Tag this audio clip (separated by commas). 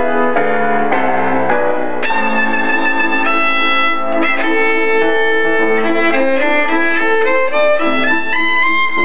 Music, Violin, Musical instrument